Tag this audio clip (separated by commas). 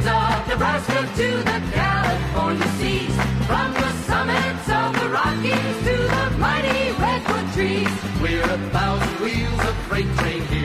Music